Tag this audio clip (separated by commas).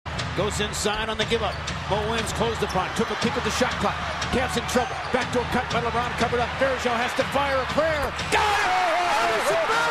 Speech, Basketball bounce